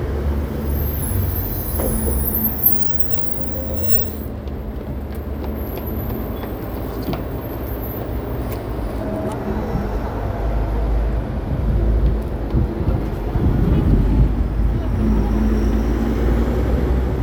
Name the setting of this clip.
street